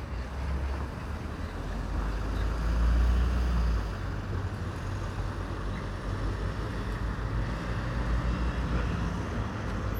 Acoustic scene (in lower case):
street